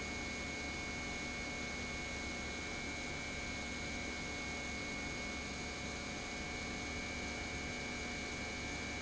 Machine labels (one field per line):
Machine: pump